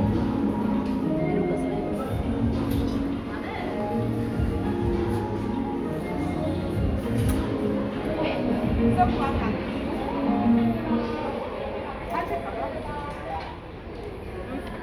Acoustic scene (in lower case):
crowded indoor space